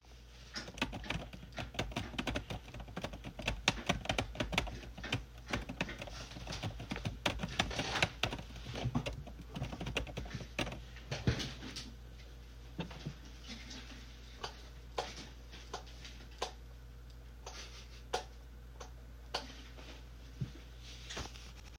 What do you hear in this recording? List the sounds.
keyboard typing, footsteps, light switch